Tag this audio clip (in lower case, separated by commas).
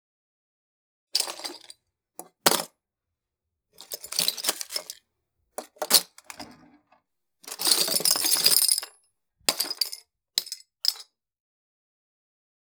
domestic sounds, coin (dropping)